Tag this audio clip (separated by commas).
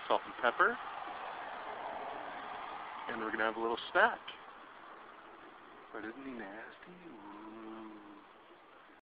Speech